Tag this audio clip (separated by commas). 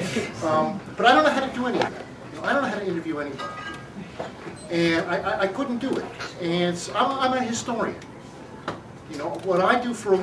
Speech, inside a large room or hall